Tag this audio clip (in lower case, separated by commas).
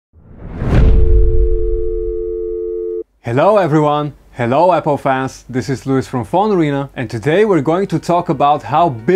speech, music